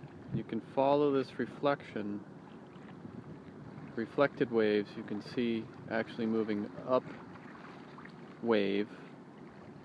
A man speaking and water running